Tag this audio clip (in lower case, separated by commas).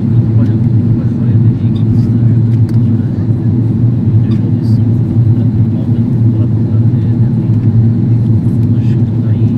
speech